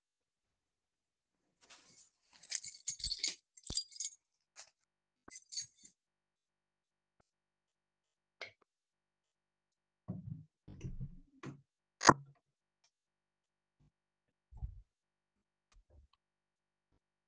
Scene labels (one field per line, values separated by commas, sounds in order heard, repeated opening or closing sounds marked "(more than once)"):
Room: hallway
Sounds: keys, light switch, door